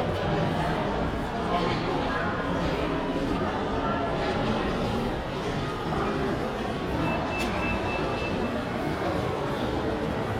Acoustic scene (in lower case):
crowded indoor space